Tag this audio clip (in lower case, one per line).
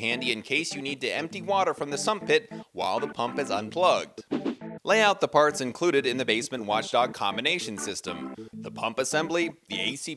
music
speech